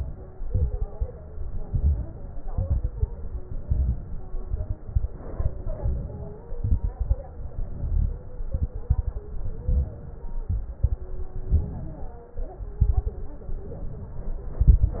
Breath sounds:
0.40-1.08 s: exhalation
0.40-1.08 s: crackles
1.60-2.28 s: exhalation
1.60-2.28 s: crackles
2.45-3.13 s: exhalation
2.45-3.13 s: crackles
3.59-4.27 s: exhalation
3.59-4.27 s: crackles
4.87-5.55 s: exhalation
4.87-5.55 s: crackles
5.64-6.52 s: inhalation
6.56-7.24 s: exhalation
6.56-7.24 s: crackles
7.35-8.40 s: inhalation
7.35-8.40 s: crackles
8.46-9.14 s: exhalation
8.46-9.14 s: crackles
9.31-10.22 s: inhalation
9.31-10.22 s: crackles
10.43-11.08 s: exhalation
10.43-11.08 s: crackles
11.48-12.25 s: inhalation
11.48-12.25 s: crackles
12.77-13.43 s: exhalation
12.77-13.43 s: crackles
13.51-14.58 s: inhalation
14.61-15.00 s: exhalation
14.61-15.00 s: crackles

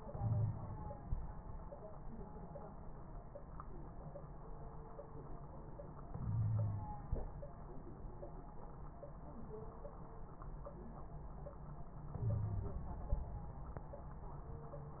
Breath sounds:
0.12-0.54 s: wheeze
6.28-6.88 s: inhalation
6.28-6.88 s: wheeze
12.26-12.78 s: inhalation
12.26-12.78 s: wheeze

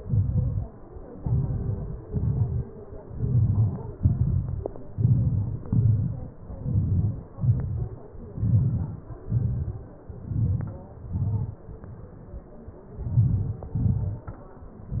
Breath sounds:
0.00-0.59 s: exhalation
0.00-0.59 s: crackles
1.29-1.89 s: inhalation
1.29-1.89 s: crackles
2.11-2.58 s: exhalation
2.11-2.58 s: crackles
3.21-3.78 s: inhalation
3.21-3.78 s: crackles
3.95-4.53 s: exhalation
3.95-4.53 s: crackles
5.01-5.59 s: inhalation
5.01-5.59 s: crackles
5.67-6.24 s: exhalation
5.67-6.24 s: crackles
6.65-7.16 s: inhalation
6.65-7.16 s: crackles
7.40-7.90 s: exhalation
7.40-7.90 s: crackles
8.46-9.03 s: inhalation
8.46-9.03 s: crackles
9.35-9.83 s: exhalation
9.35-9.83 s: crackles
10.31-10.80 s: inhalation
10.31-10.82 s: crackles
11.21-11.64 s: exhalation
11.21-11.64 s: crackles
13.18-13.61 s: inhalation
13.18-13.61 s: crackles
13.83-14.26 s: exhalation
13.83-14.26 s: crackles

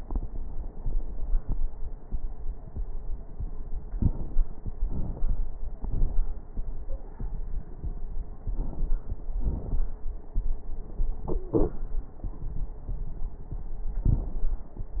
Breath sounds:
3.96-4.38 s: inhalation
3.96-4.38 s: crackles
4.93-5.41 s: exhalation
4.93-5.41 s: crackles
8.53-9.00 s: inhalation
8.53-9.00 s: crackles
9.38-9.85 s: exhalation
9.38-9.85 s: crackles
11.29-11.71 s: wheeze

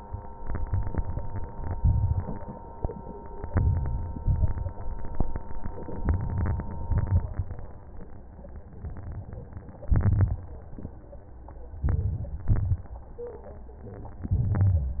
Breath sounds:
0.42-1.47 s: inhalation
1.66-2.63 s: crackles
1.70-2.65 s: exhalation
3.45-4.26 s: crackles
3.50-4.24 s: inhalation
4.24-5.16 s: exhalation
4.27-5.19 s: crackles
5.91-6.66 s: crackles
5.92-6.66 s: inhalation
6.66-7.40 s: exhalation
6.69-7.45 s: crackles
9.86-10.76 s: crackles
9.87-10.79 s: inhalation
11.70-12.48 s: crackles
11.75-12.49 s: inhalation
12.48-13.30 s: crackles
12.49-13.24 s: exhalation
14.23-15.00 s: crackles
14.26-15.00 s: inhalation

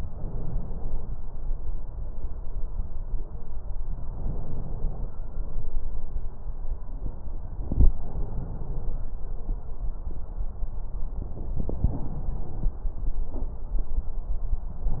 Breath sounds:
0.00-1.16 s: inhalation
4.05-5.11 s: inhalation
7.62-9.14 s: inhalation
7.62-9.14 s: crackles
11.16-12.81 s: inhalation
11.16-12.81 s: crackles

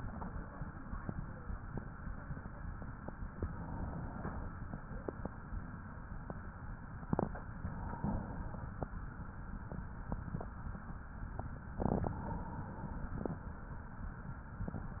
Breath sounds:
3.32-4.52 s: inhalation
7.56-8.76 s: inhalation
12.03-13.23 s: inhalation

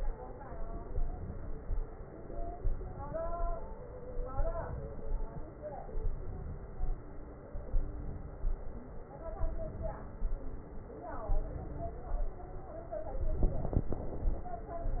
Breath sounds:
0.85-1.75 s: inhalation
2.56-3.46 s: inhalation
4.32-5.16 s: inhalation
6.05-6.88 s: inhalation
7.77-8.61 s: inhalation
9.51-10.35 s: inhalation
11.35-12.26 s: inhalation

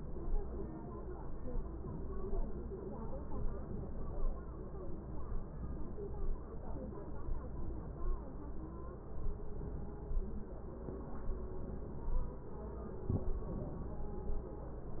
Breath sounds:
3.33-4.20 s: inhalation
13.46-14.01 s: inhalation

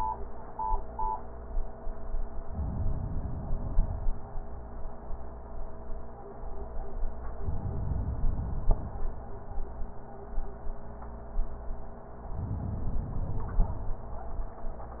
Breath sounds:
2.47-4.32 s: inhalation
7.31-9.16 s: inhalation
12.23-14.08 s: inhalation

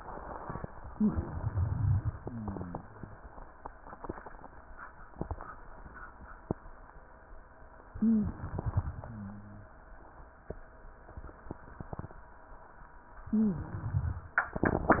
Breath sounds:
0.91-1.45 s: wheeze
0.91-2.16 s: inhalation
2.16-2.84 s: exhalation
2.16-2.84 s: rhonchi
7.90-9.01 s: inhalation
7.98-8.37 s: wheeze
9.01-9.74 s: exhalation
9.01-9.74 s: rhonchi
13.26-13.97 s: wheeze
13.26-14.41 s: inhalation

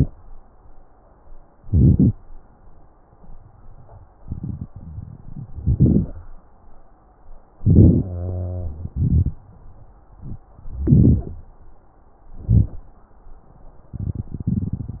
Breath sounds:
1.65-2.16 s: inhalation
4.70-5.53 s: wheeze
5.62-6.26 s: inhalation
5.62-6.26 s: crackles
7.61-8.08 s: inhalation
8.05-8.89 s: wheeze
8.91-9.33 s: exhalation
10.76-11.48 s: inhalation
12.41-12.85 s: inhalation
12.41-12.85 s: crackles

